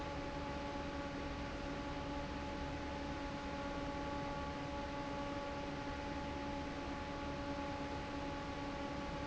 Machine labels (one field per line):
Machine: fan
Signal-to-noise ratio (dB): 0 dB